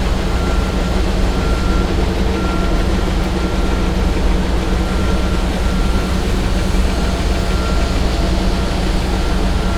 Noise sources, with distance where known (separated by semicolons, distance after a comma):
large-sounding engine, near; reverse beeper